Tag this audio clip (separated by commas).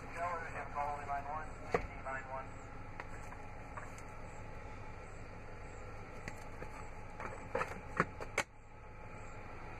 Speech